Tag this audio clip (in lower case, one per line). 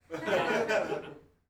laughter
human voice
chuckle